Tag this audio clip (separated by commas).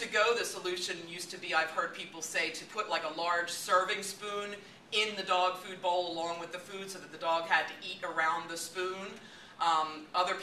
Speech